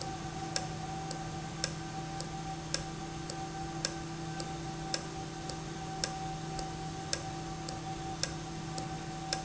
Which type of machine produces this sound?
valve